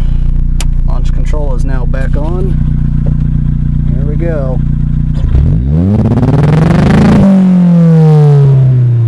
A car engine humming as it idles then accelerates